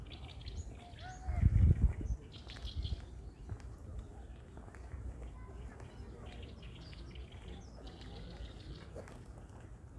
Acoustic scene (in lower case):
park